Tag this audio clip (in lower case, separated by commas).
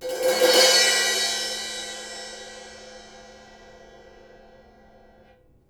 musical instrument, music, crash cymbal, cymbal, percussion